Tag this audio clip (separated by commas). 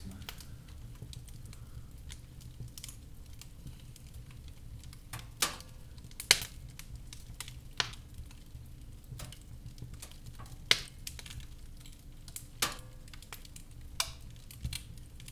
Fire